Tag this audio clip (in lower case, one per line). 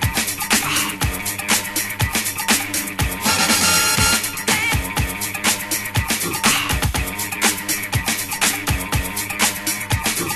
house music
music